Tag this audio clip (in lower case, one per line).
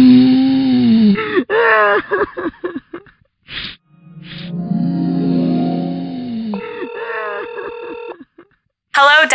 groan
speech
music